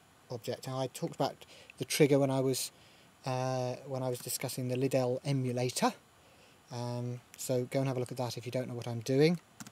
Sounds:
speech

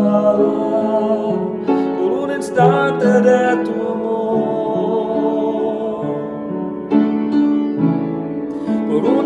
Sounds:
piano, music

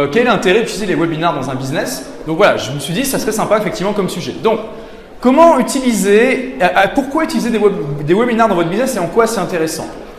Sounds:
speech

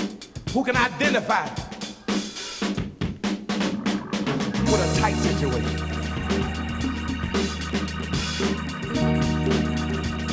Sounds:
music, drum

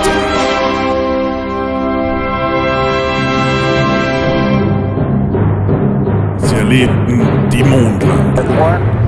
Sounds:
music, speech

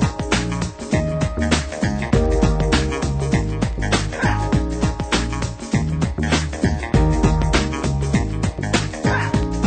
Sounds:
music

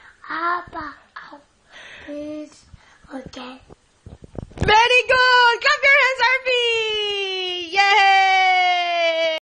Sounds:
speech

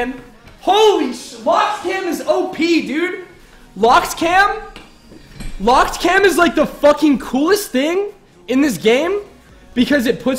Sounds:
speech

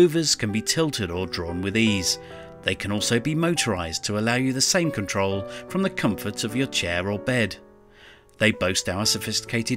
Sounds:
music, speech

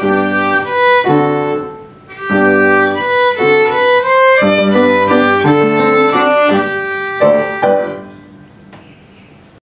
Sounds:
musical instrument, music, fiddle

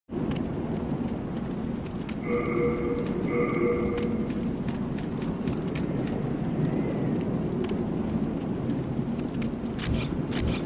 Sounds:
outside, urban or man-made

